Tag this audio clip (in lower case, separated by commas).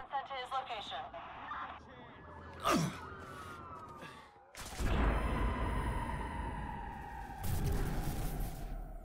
door, speech